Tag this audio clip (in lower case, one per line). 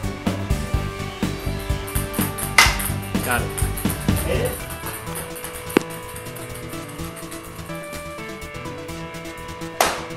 music